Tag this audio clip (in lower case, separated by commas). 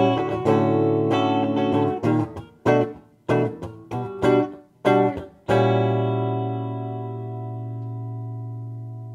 acoustic guitar, musical instrument, strum, plucked string instrument, music, guitar